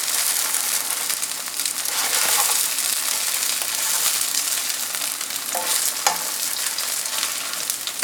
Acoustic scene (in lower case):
kitchen